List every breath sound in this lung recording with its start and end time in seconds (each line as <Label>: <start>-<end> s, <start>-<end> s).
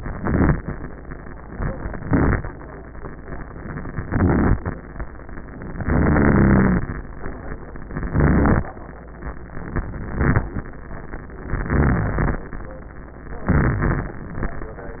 Inhalation: 0.00-0.59 s, 1.90-2.49 s, 4.02-4.61 s, 5.84-6.83 s, 8.12-8.65 s, 10.02-10.55 s, 11.55-12.39 s, 13.49-14.19 s